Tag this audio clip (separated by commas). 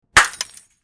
Glass, Shatter